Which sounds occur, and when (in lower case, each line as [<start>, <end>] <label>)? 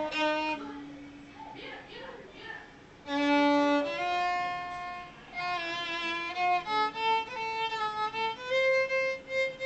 [0.00, 1.50] music
[0.00, 9.65] mechanisms
[0.59, 0.93] man speaking
[1.26, 2.74] man speaking
[3.05, 9.65] music